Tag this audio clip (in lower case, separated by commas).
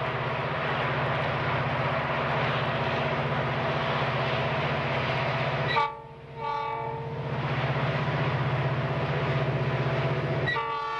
rail transport, train, train horn, clickety-clack